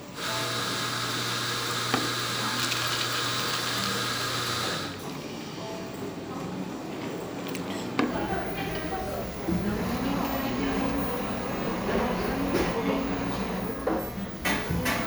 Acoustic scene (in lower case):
cafe